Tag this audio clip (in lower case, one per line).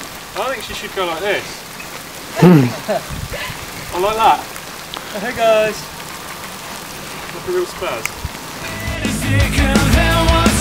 raindrop